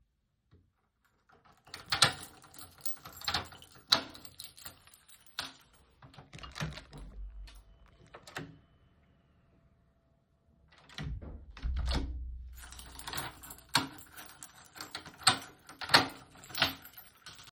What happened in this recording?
I unlocked my door, opened it and then shut it and locked it again